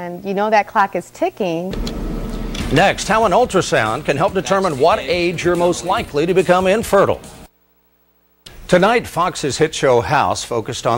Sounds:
Speech, Music

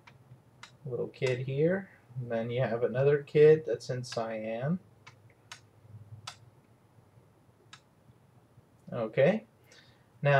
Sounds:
Typing

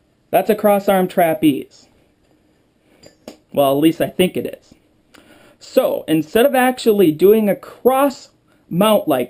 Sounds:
Speech

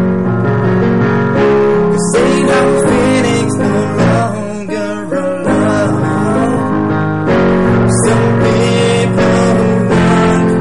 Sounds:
Music

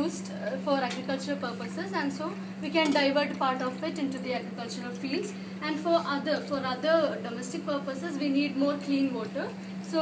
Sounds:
Speech

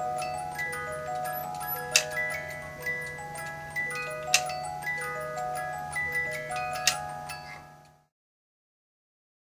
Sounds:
Music, Tick

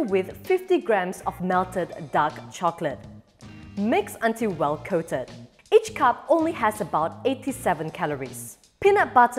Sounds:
popping popcorn

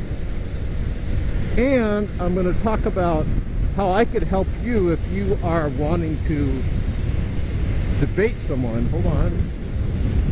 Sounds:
Speech, Vehicle

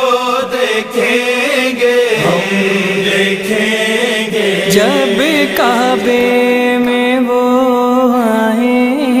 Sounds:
Mantra

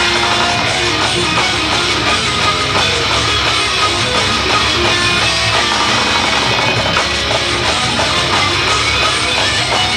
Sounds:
Music

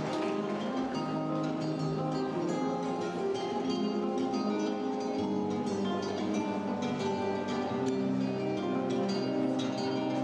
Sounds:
Music

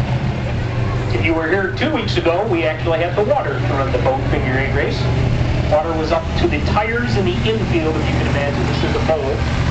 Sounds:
Speech, Vehicle

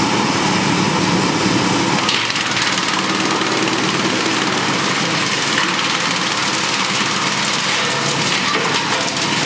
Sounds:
Wood

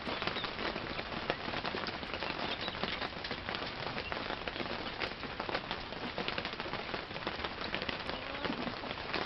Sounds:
Animal

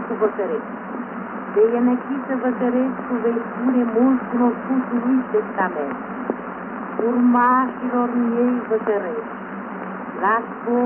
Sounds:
Speech, Radio

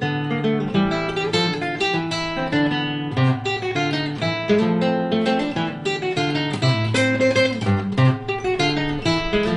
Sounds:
Music, Guitar, Musical instrument, playing acoustic guitar, Strum, Acoustic guitar, Plucked string instrument

